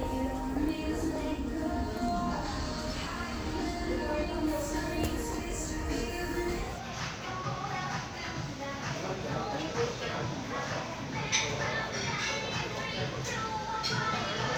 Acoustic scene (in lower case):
crowded indoor space